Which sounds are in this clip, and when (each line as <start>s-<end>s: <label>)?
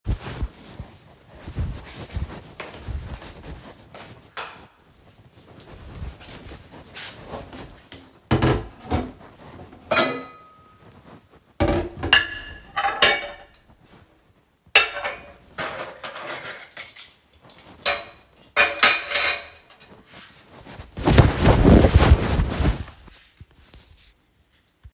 2.5s-4.3s: footsteps
4.0s-4.8s: light switch
8.2s-10.5s: cutlery and dishes
11.4s-13.6s: cutlery and dishes
14.5s-19.7s: cutlery and dishes